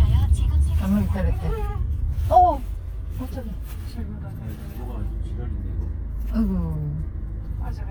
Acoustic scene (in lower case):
car